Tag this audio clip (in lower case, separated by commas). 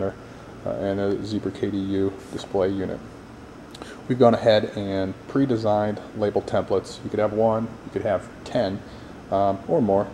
speech